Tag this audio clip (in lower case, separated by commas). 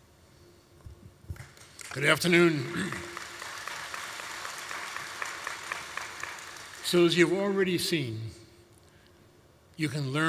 narration, man speaking, speech